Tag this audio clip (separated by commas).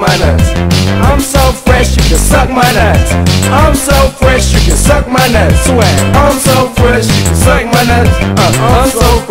Music, Video game music, Exciting music, Theme music